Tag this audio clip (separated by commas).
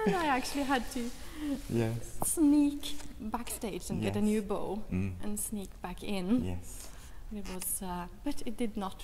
Speech